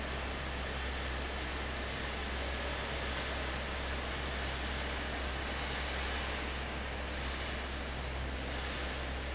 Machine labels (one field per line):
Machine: fan